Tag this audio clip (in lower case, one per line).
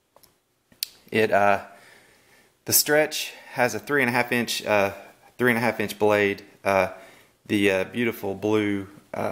speech